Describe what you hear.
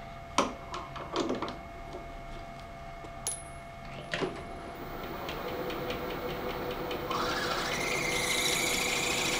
Something is played with and then a small motor starts up and squeaks